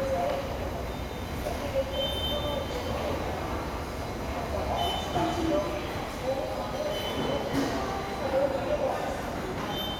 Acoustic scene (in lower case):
subway station